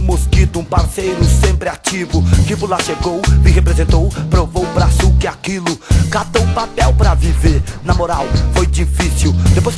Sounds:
Music

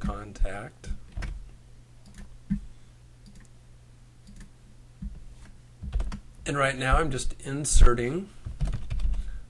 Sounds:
Speech

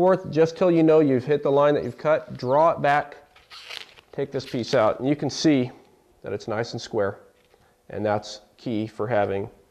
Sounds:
inside a small room, Speech

